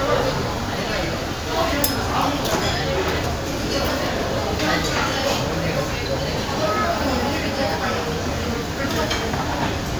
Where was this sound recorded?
in a crowded indoor space